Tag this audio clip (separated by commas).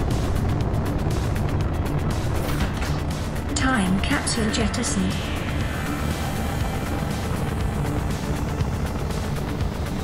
missile launch